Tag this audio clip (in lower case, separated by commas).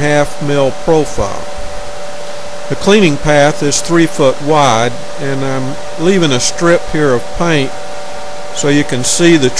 speech